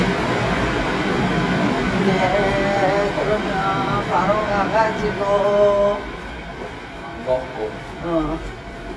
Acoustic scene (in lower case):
subway station